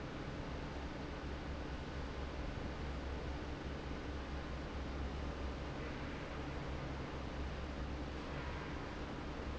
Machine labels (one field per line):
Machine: fan